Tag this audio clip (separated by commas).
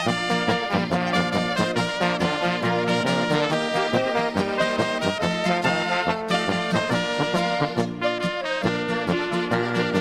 Accordion, Musical instrument, Music